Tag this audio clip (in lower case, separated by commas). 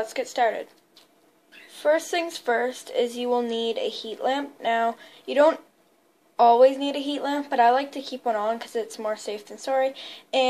speech